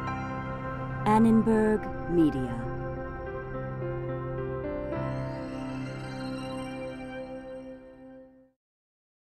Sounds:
Music, Speech

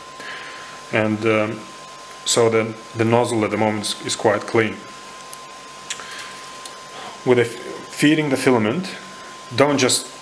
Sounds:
Speech

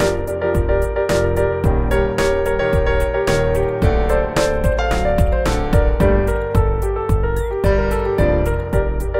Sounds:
Music

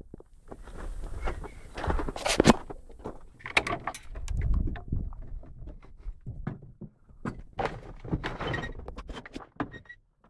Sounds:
outside, urban or man-made

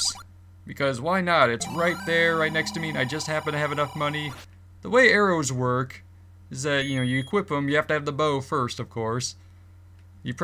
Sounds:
Speech

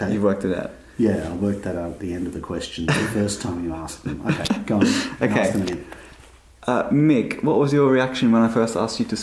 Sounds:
Speech

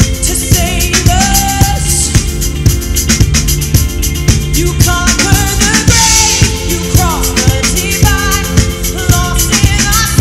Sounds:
Music, Male singing

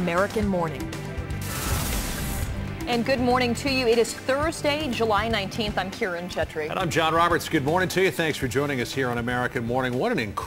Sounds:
Speech, Music

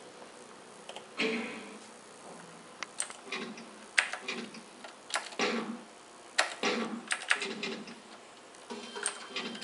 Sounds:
inside a small room, Typewriter

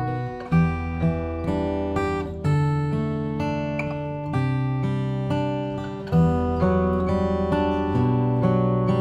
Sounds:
Plucked string instrument, Musical instrument, Guitar, Music, Acoustic guitar

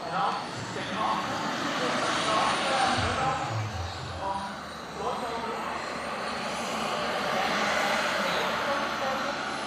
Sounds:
airplane flyby

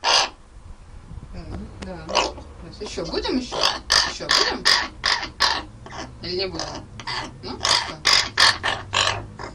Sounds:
Bird, Speech, Crow

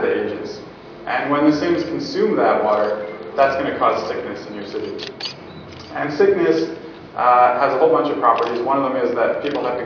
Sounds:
Speech, inside a large room or hall

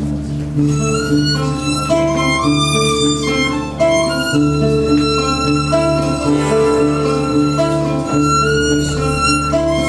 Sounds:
Music, Lullaby

